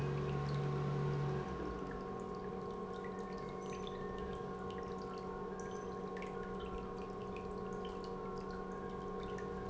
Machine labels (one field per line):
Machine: pump